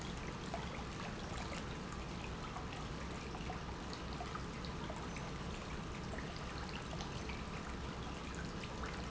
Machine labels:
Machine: pump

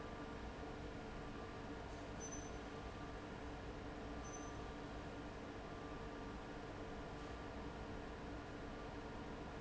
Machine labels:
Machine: fan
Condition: abnormal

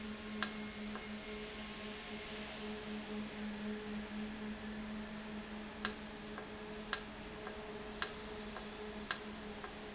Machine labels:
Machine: valve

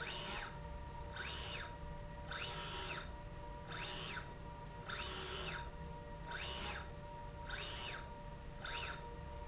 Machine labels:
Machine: slide rail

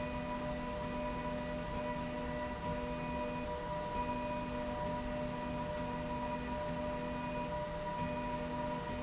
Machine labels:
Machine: slide rail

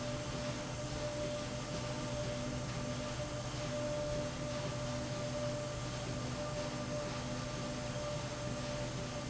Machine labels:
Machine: slide rail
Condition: normal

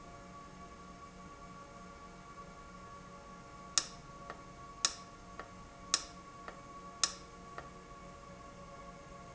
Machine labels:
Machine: valve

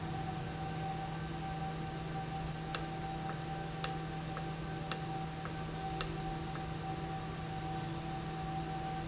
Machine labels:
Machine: valve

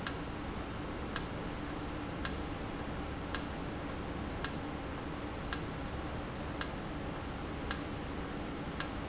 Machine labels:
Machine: valve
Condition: normal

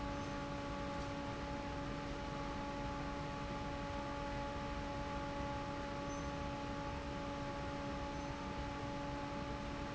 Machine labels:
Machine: fan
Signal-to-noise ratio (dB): 0 dB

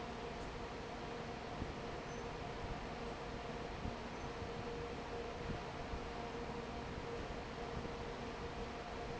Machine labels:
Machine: fan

